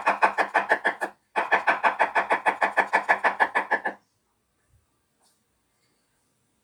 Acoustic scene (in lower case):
kitchen